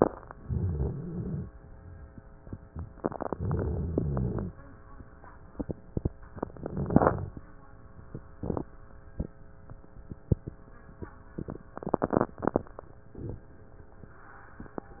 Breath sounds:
0.38-1.45 s: inhalation
0.42-1.47 s: rhonchi
3.33-4.54 s: inhalation
3.33-4.54 s: rhonchi
6.43-7.38 s: inhalation
6.43-7.38 s: rhonchi

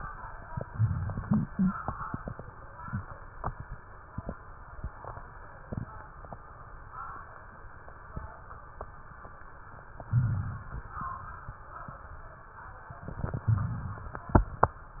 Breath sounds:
0.65-1.46 s: inhalation
0.65-1.46 s: crackles
10.13-10.95 s: inhalation
10.13-10.95 s: crackles
13.49-14.31 s: inhalation
13.49-14.31 s: crackles

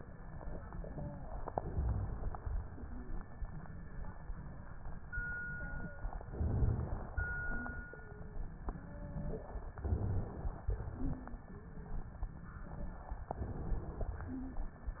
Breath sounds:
1.48-2.30 s: inhalation
1.66-2.16 s: rhonchi
5.44-6.08 s: wheeze
6.28-7.10 s: inhalation
6.40-6.90 s: rhonchi
7.42-7.92 s: wheeze
7.94-8.44 s: wheeze
8.70-9.56 s: wheeze
9.80-10.30 s: rhonchi
9.80-10.62 s: inhalation
13.32-14.14 s: inhalation

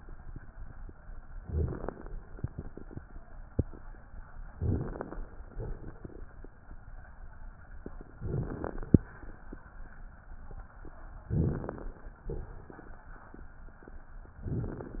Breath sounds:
1.39-2.09 s: inhalation
1.39-2.09 s: crackles
4.57-5.28 s: inhalation
4.57-5.28 s: crackles
5.54-6.24 s: exhalation
8.23-8.94 s: inhalation
8.23-8.94 s: crackles
11.33-12.14 s: inhalation
11.33-12.14 s: crackles
12.29-13.11 s: exhalation
14.40-15.00 s: inhalation
14.40-15.00 s: crackles

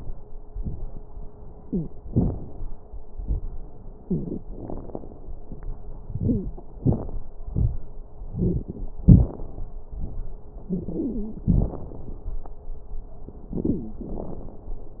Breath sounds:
1.58-1.89 s: wheeze
6.17-6.48 s: wheeze
10.68-11.41 s: wheeze

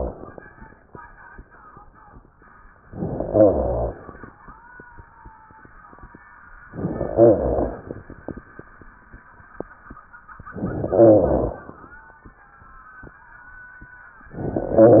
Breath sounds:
2.87-4.27 s: inhalation
3.23-3.97 s: rhonchi
6.66-8.06 s: inhalation
7.10-7.84 s: rhonchi
10.47-11.88 s: inhalation

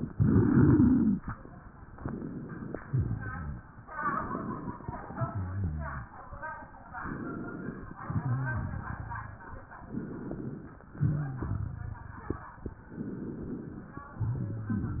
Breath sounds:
0.00-1.20 s: inhalation
1.92-2.76 s: inhalation
2.82-3.72 s: exhalation
2.82-3.72 s: crackles
3.88-4.78 s: inhalation
4.85-6.17 s: exhalation
4.85-6.17 s: crackles
6.95-7.97 s: inhalation
8.01-9.41 s: exhalation
8.01-9.41 s: crackles
9.77-10.85 s: inhalation
10.91-12.53 s: exhalation
10.91-12.53 s: crackles
12.80-14.06 s: inhalation
14.12-15.00 s: exhalation
14.12-15.00 s: crackles

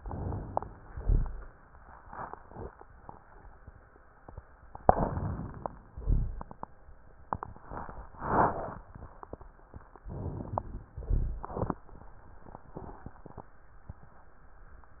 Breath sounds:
0.00-0.86 s: inhalation
0.86-1.52 s: exhalation
0.86-1.52 s: rhonchi
4.95-5.90 s: inhalation
5.90-6.53 s: exhalation
5.90-6.53 s: rhonchi
10.02-10.89 s: inhalation
10.89-11.56 s: exhalation
10.89-11.56 s: rhonchi

